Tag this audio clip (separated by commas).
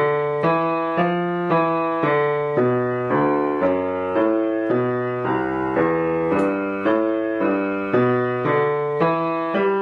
Musical instrument, Keyboard (musical), Piano, Blues, Music, playing piano